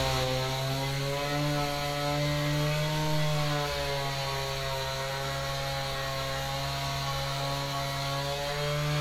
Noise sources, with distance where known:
unidentified powered saw, near

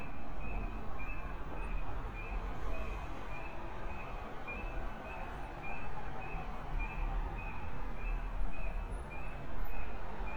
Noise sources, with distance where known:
unidentified alert signal

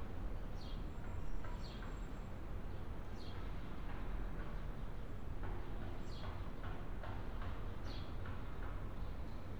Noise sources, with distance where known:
background noise

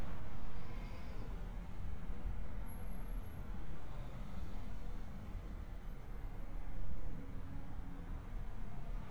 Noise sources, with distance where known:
background noise

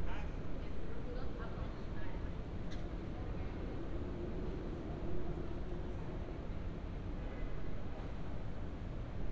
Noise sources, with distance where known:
car horn

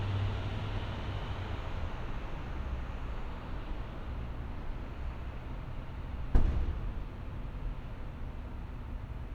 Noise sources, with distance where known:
engine of unclear size

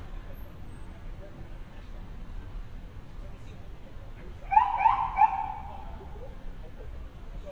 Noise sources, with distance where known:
unidentified alert signal, near; person or small group talking, near

